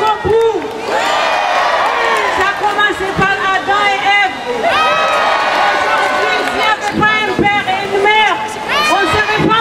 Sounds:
Speech

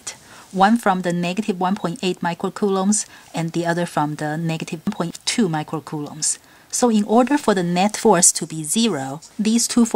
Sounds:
Speech

